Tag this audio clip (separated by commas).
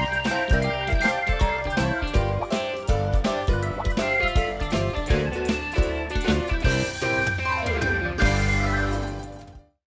Music